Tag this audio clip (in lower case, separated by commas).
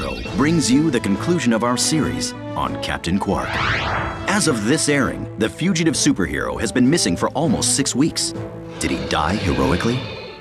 speech, music